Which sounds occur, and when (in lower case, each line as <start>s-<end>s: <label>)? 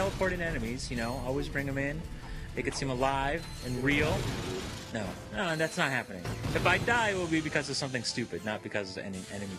0.0s-0.4s: sound effect
0.0s-1.9s: male speech
0.0s-9.5s: video game sound
0.9s-1.2s: bell
2.2s-2.5s: sound effect
2.2s-9.5s: music
2.5s-3.4s: male speech
2.7s-2.9s: sound effect
3.4s-3.8s: bell
3.6s-4.2s: male speech
3.8s-4.9s: sound effect
4.9s-5.1s: male speech
5.3s-6.0s: male speech
5.5s-6.1s: bell
6.3s-8.1s: sound effect
6.5s-9.5s: male speech